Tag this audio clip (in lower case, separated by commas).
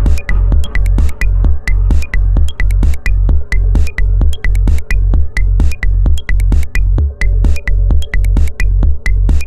techno, music